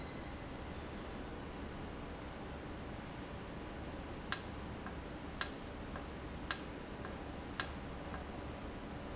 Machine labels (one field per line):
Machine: valve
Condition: normal